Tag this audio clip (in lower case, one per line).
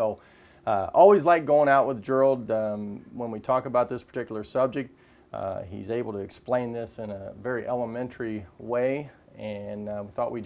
speech